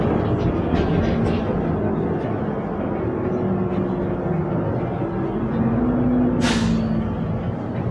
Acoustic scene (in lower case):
bus